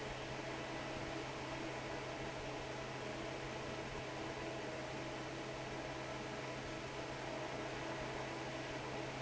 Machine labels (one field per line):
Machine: fan